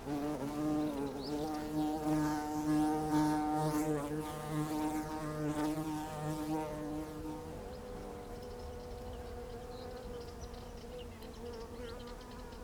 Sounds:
wild animals, insect, animal, bird, buzz

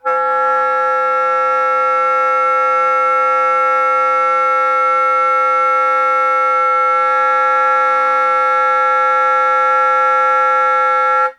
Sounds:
music, musical instrument, woodwind instrument

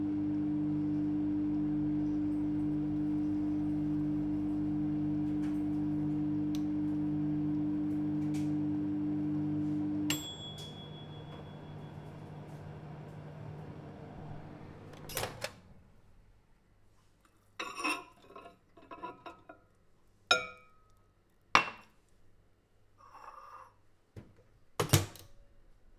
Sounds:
microwave oven, domestic sounds

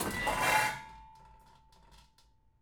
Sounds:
dishes, pots and pans, home sounds

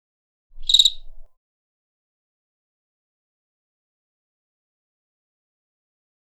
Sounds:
wild animals, cricket, animal, insect

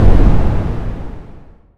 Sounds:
boom, explosion

